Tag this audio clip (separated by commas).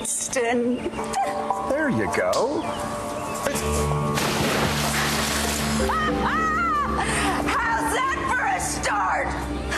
Music, Speech